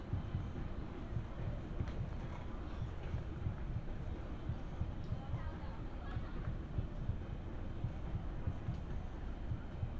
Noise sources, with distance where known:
unidentified human voice, far

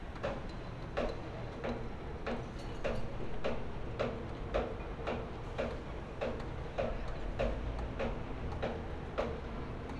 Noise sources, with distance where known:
unidentified impact machinery

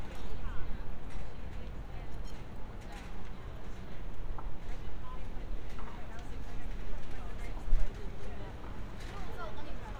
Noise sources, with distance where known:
person or small group talking

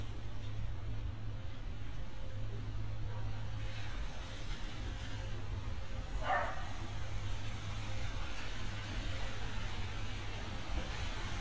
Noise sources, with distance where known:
dog barking or whining

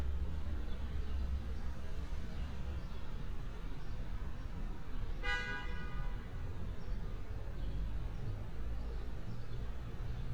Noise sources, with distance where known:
car horn, near

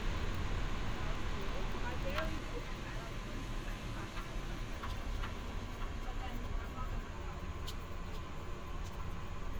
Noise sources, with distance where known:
person or small group talking, far

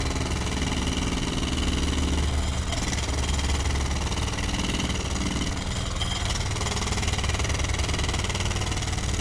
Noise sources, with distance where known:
jackhammer

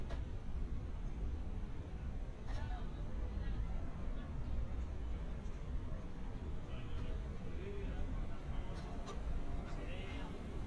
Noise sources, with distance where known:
person or small group talking, far

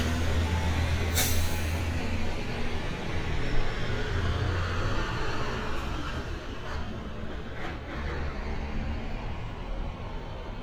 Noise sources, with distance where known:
large-sounding engine, near

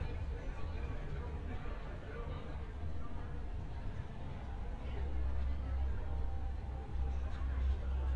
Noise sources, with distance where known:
unidentified human voice

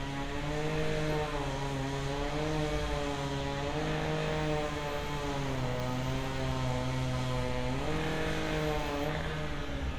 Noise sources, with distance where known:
small or medium rotating saw

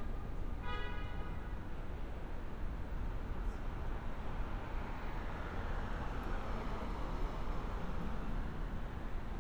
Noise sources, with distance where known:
car horn

